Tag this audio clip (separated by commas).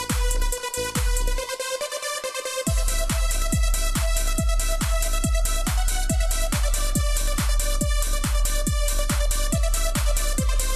Electronica, Music